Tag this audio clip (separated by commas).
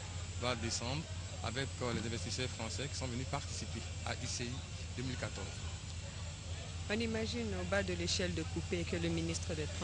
Speech